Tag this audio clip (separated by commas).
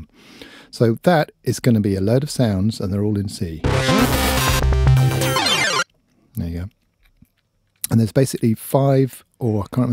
Synthesizer, Musical instrument, Speech, Music